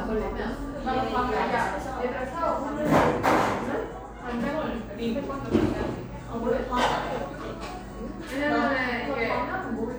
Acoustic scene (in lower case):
cafe